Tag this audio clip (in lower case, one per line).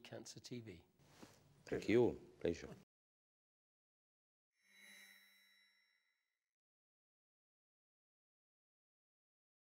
speech